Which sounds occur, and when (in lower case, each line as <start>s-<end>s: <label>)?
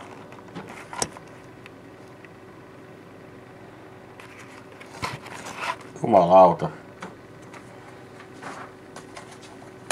0.0s-1.5s: generic impact sounds
0.0s-9.9s: mechanisms
1.0s-1.1s: tick
1.7s-1.7s: tick
2.0s-2.3s: generic impact sounds
4.2s-6.0s: generic impact sounds
4.8s-4.9s: tick
6.0s-6.7s: male speech
6.6s-6.7s: tick
7.0s-7.1s: tick
7.4s-7.7s: generic impact sounds
7.4s-7.5s: tick
7.6s-7.6s: tick
8.2s-8.3s: tick
8.4s-8.8s: generic impact sounds
8.9s-9.6s: generic impact sounds